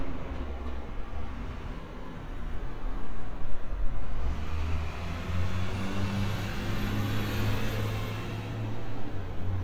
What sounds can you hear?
large-sounding engine